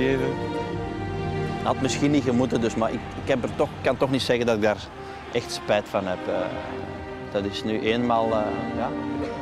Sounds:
Speech, Music

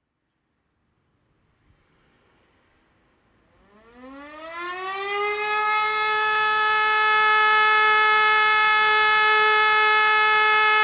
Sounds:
civil defense siren

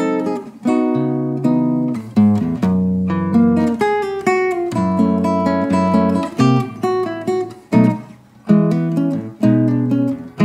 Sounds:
Strum, Acoustic guitar, Plucked string instrument, Guitar, Music, Musical instrument

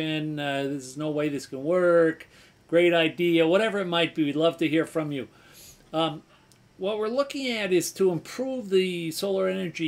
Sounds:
Speech

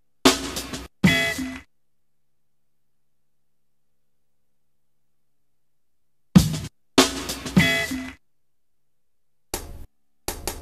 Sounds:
Music, Drum roll

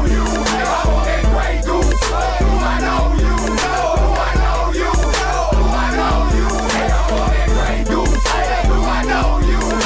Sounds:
Music

